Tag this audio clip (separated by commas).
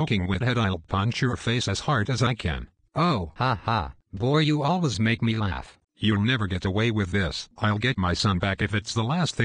Speech